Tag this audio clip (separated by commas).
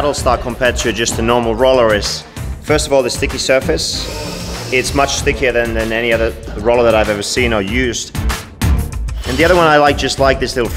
Speech, Music